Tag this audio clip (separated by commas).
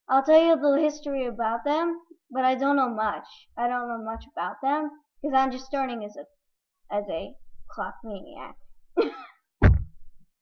Speech